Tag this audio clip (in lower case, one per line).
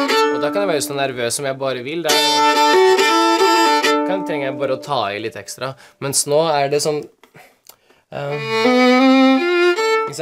speech
violin
musical instrument
music
bowed string instrument